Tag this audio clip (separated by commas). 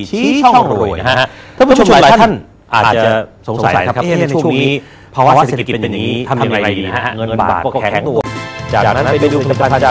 Speech